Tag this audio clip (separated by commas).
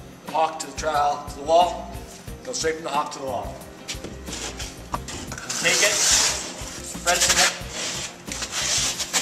inside a small room, Music, Speech